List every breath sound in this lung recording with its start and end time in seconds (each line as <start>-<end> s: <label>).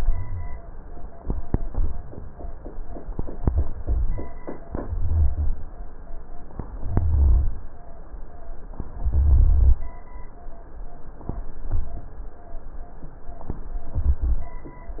4.80-5.60 s: inhalation
4.80-5.60 s: rhonchi
6.87-7.65 s: inhalation
6.87-7.65 s: rhonchi
8.97-9.85 s: inhalation
8.97-9.85 s: rhonchi
13.96-14.63 s: inhalation
13.96-14.63 s: rhonchi